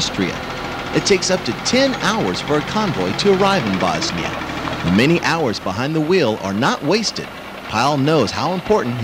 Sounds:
Speech, Vehicle, Truck

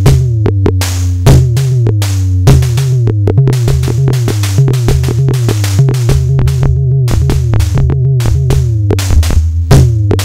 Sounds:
Music

